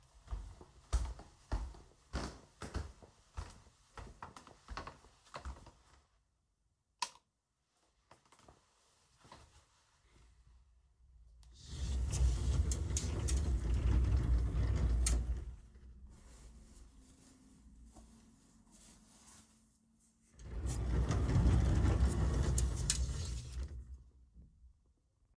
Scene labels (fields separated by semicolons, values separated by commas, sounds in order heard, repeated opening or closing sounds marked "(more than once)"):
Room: bedroom; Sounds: footsteps, light switch, wardrobe or drawer (more than once)